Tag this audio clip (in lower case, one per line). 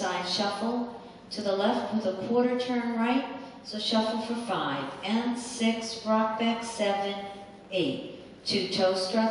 speech